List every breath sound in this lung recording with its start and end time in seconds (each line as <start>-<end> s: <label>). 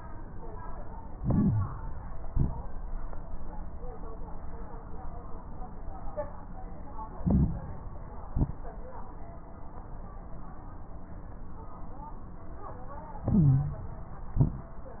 1.10-2.11 s: inhalation
1.10-2.11 s: crackles
2.20-2.67 s: exhalation
2.20-2.67 s: crackles
7.16-7.67 s: inhalation
7.16-7.67 s: crackles
8.27-8.78 s: exhalation
8.27-8.78 s: crackles
13.22-14.08 s: inhalation
13.22-14.08 s: stridor
14.33-14.79 s: exhalation
14.33-14.79 s: crackles